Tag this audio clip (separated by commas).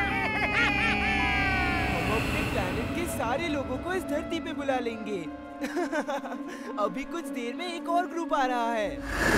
Speech, Music